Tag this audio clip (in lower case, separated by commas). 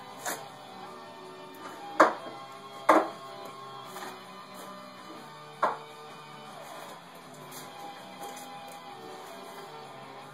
music